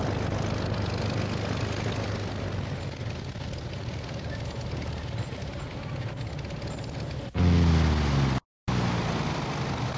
A vehicle passing by